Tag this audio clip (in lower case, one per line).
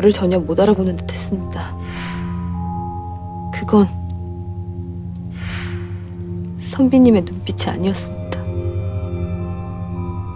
speech
inside a small room
music